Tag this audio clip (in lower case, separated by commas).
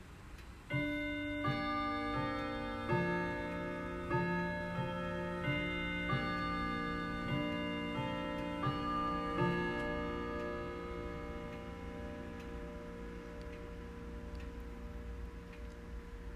clock, tick-tock, mechanisms, bell